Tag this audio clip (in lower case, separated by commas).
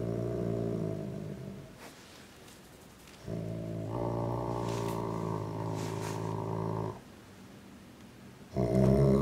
animal, dog, bow-wow, domestic animals